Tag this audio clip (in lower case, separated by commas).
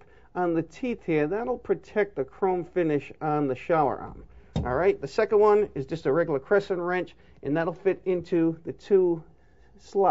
speech